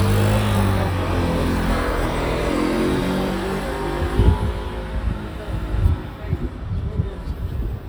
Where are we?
in a residential area